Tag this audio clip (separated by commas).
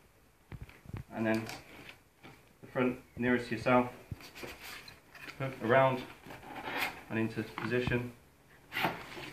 Speech